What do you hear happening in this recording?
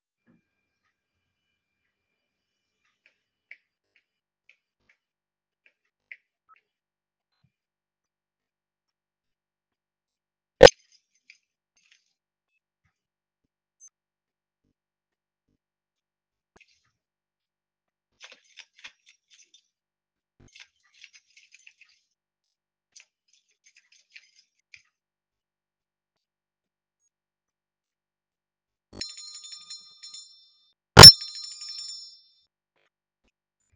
I walked to my house door. I tried to unlock it with my keychain, then rang the bell